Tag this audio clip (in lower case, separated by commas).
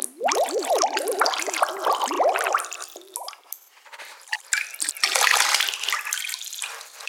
drip, liquid